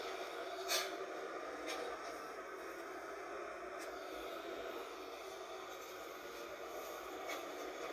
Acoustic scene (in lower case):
bus